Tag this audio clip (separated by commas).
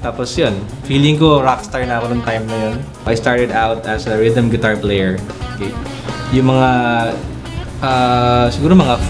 Speech, Music